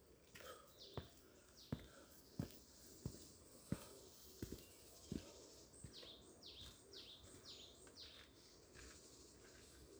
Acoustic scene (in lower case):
park